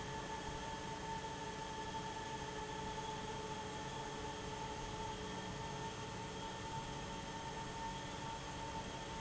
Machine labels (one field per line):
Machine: fan